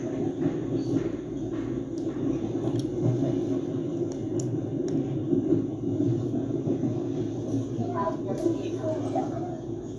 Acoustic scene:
subway train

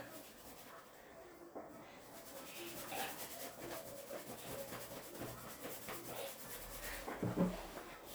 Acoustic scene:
restroom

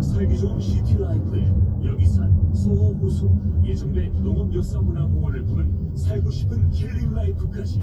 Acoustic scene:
car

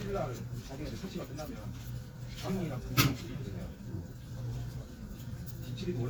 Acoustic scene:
crowded indoor space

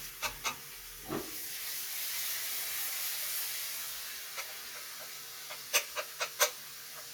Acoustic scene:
kitchen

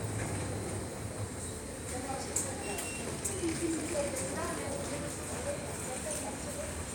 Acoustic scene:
subway station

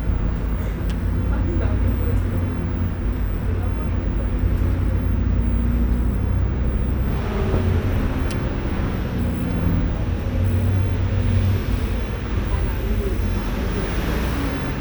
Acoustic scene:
bus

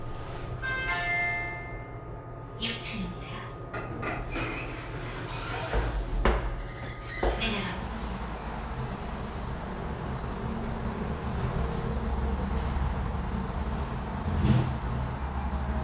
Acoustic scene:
elevator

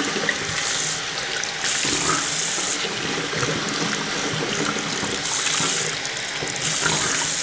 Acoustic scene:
restroom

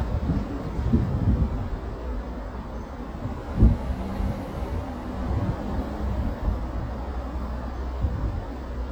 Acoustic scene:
residential area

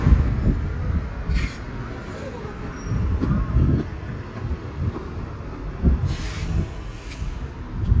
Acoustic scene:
street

